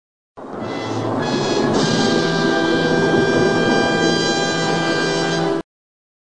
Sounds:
music

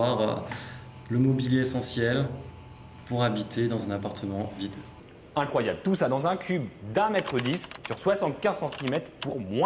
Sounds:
speech

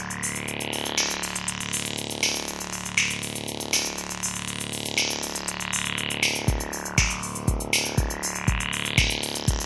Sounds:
drum machine
music

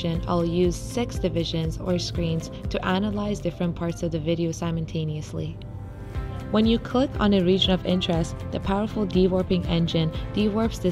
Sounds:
music
speech

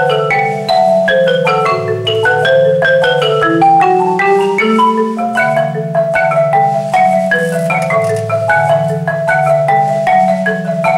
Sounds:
music

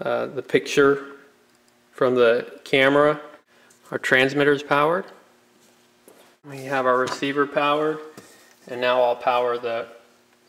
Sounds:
speech

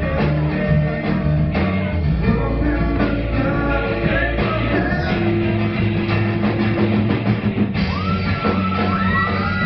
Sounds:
music

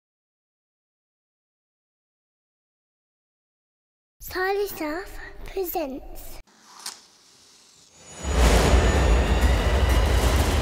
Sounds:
music
speech

